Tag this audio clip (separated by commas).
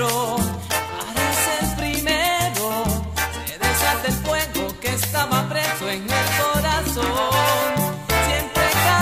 Music, Soul music